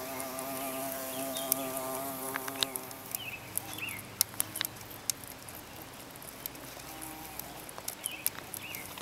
An insect is flying and chewing